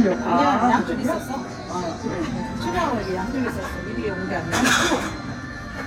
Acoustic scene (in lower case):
restaurant